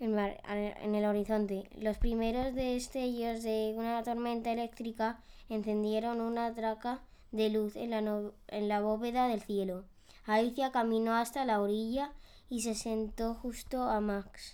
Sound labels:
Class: speech